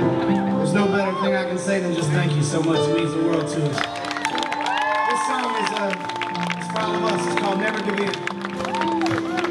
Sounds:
music, speech

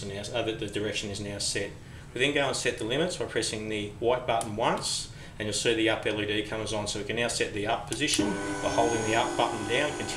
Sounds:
speech

